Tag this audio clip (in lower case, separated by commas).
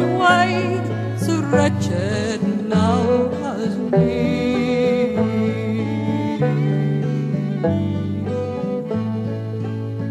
bluegrass